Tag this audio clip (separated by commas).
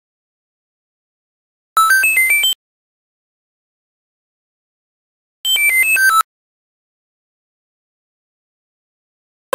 Music